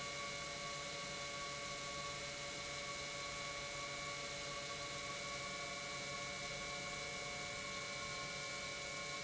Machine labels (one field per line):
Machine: pump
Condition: normal